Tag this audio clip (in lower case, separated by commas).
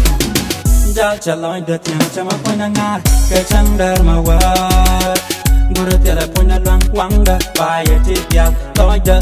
music